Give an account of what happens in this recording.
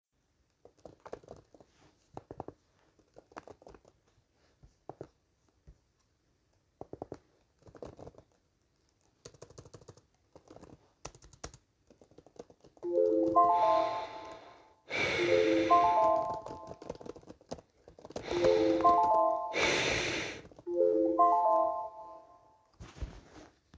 I am typing on my keyboard while my phone rang, I started breathing heavily and continued typing without answering the call.